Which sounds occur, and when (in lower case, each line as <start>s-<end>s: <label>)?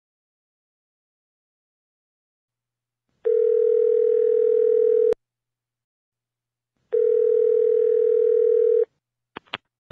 2.9s-5.1s: mechanisms
3.2s-5.1s: dial tone
6.7s-9.0s: mechanisms
6.9s-8.8s: dial tone
9.3s-9.7s: generic impact sounds